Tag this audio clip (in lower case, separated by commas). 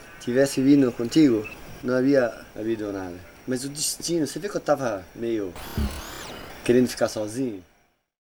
human voice, man speaking, speech